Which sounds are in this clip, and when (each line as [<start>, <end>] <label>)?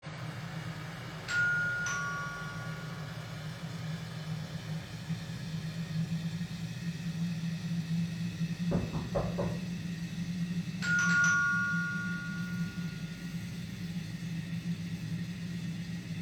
[1.30, 2.94] bell ringing
[10.63, 13.07] bell ringing